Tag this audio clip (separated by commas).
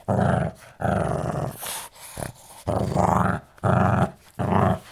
Dog, pets, Animal, Growling